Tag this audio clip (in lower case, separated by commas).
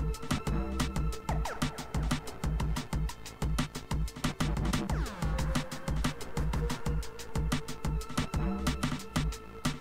music